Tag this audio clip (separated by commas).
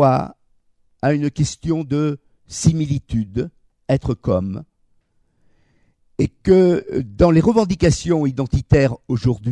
Speech